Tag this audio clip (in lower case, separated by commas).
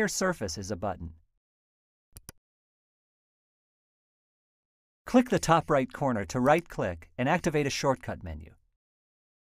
speech